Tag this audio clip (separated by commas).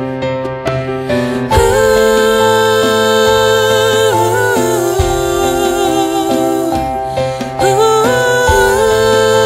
Music